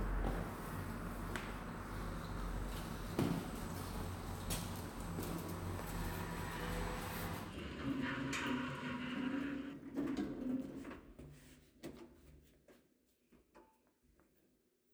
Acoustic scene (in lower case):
elevator